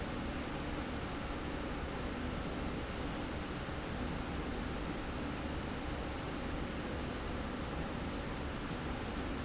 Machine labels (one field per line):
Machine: slide rail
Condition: normal